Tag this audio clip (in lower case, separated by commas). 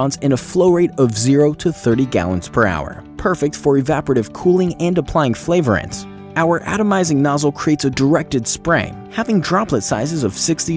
speech, music